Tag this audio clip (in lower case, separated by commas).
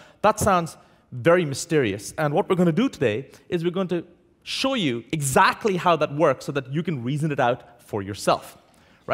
speech